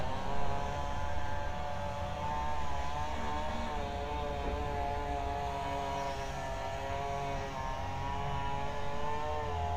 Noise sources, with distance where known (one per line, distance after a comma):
unidentified powered saw